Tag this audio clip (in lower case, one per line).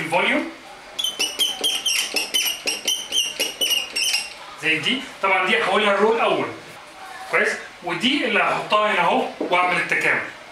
speech
inside a large room or hall